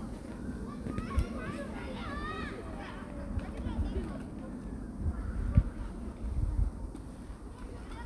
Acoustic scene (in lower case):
park